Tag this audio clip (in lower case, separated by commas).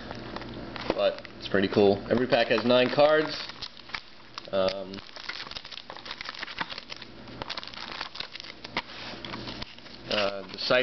inside a small room, speech